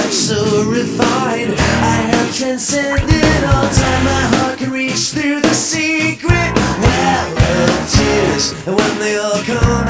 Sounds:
music

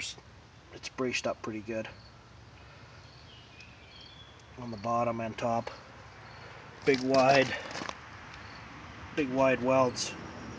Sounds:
speech

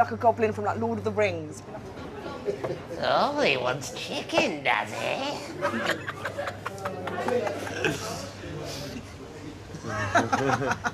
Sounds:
laughter

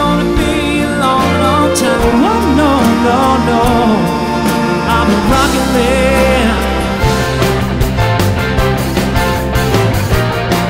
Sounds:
music
exciting music
orchestra

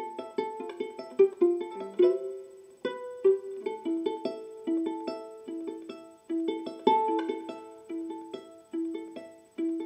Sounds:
violin
pizzicato

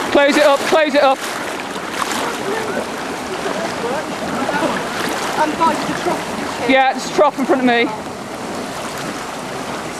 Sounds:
speech
stream

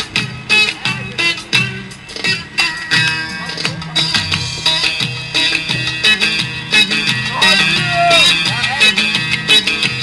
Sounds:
speech
music

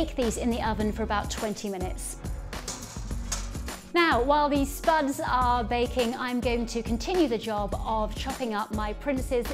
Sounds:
music
speech

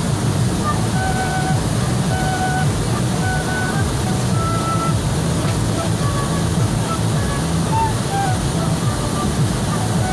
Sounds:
music
waterfall burbling
waterfall

